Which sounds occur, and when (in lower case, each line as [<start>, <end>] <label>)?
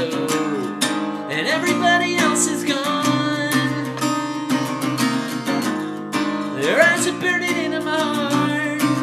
[0.00, 0.78] male singing
[0.00, 9.02] music
[1.25, 3.72] male singing
[6.50, 8.77] male singing